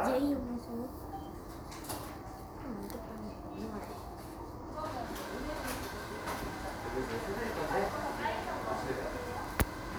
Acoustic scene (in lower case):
crowded indoor space